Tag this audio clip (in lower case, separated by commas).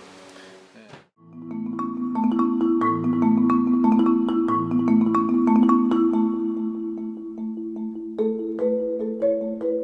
music, marimba